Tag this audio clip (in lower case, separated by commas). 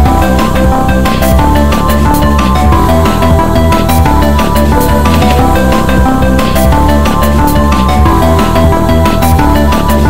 music